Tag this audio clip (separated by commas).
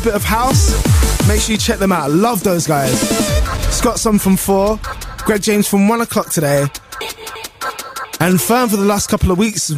Guitar, Musical instrument, Plucked string instrument, Music, Speech